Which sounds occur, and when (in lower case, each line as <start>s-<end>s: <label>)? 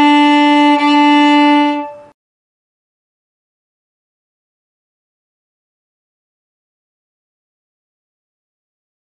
0.0s-2.1s: music